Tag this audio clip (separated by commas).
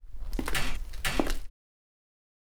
Walk